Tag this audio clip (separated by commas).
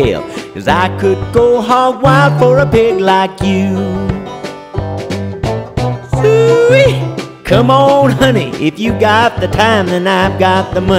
Music